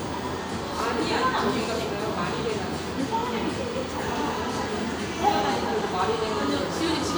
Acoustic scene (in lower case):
cafe